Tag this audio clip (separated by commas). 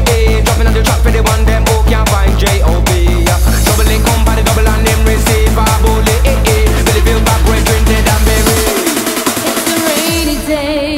Music